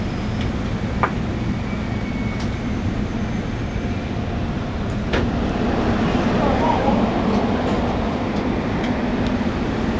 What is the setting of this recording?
subway train